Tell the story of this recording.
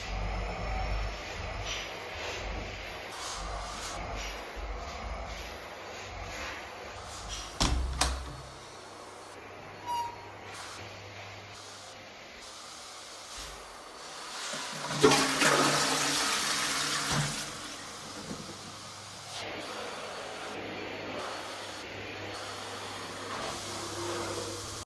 The vacuum is running. I open the door, then flush the toilet.